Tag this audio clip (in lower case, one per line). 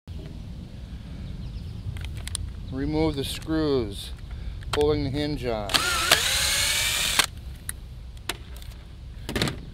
speech